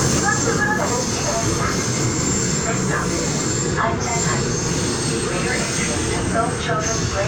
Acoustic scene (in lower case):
subway train